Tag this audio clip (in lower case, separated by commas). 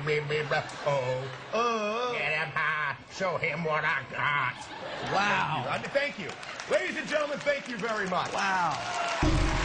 speech